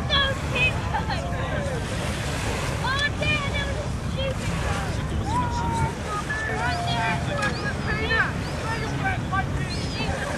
A young boy is talking and laughing and then you hear the sound of waves crashing